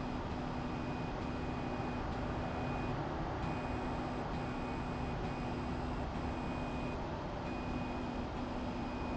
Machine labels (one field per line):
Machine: slide rail